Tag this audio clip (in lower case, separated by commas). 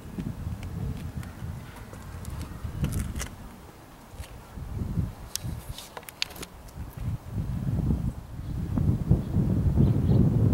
outside, rural or natural